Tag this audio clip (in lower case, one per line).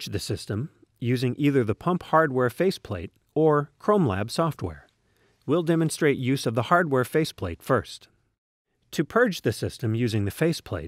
speech